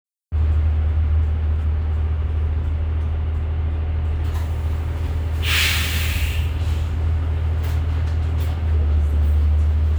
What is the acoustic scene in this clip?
bus